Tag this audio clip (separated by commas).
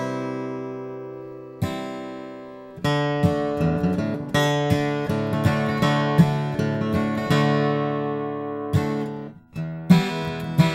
Plucked string instrument, Guitar, Musical instrument, Music